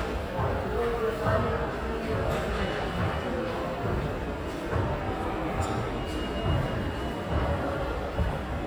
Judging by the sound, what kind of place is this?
subway station